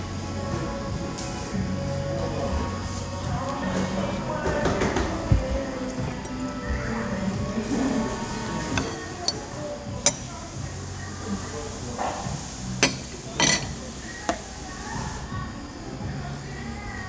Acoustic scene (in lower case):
cafe